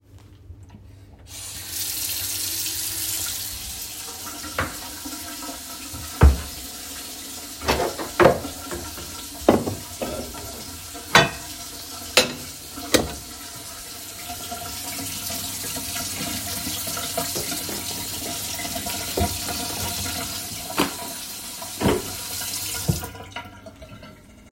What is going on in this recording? I first turned on the water, then stacked dishes and put them away. Afterwards I closed a book, that made a dull noise.